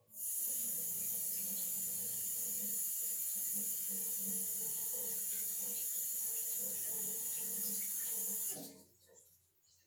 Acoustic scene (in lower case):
restroom